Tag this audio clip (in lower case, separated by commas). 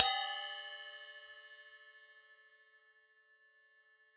cymbal, music, percussion, musical instrument, crash cymbal